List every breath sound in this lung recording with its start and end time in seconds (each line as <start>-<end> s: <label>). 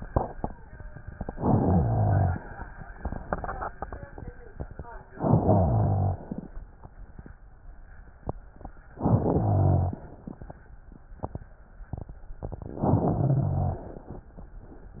1.29-2.45 s: inhalation
1.29-2.45 s: rhonchi
5.14-6.30 s: inhalation
5.14-6.30 s: rhonchi
8.96-10.04 s: inhalation
8.96-10.04 s: rhonchi
12.81-13.89 s: inhalation
12.81-13.89 s: rhonchi